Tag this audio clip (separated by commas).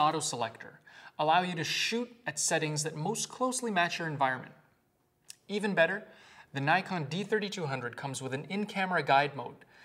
Speech